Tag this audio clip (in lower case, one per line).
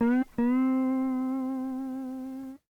musical instrument
guitar
music
plucked string instrument